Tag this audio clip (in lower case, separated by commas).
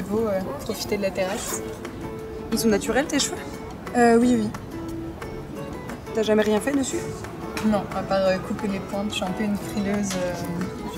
music, speech